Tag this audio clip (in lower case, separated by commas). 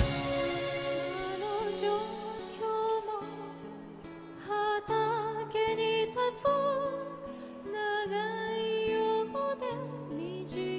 music